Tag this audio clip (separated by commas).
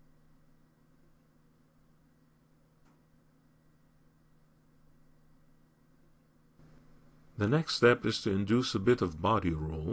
Speech